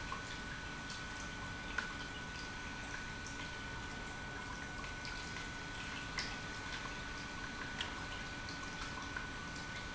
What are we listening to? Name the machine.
pump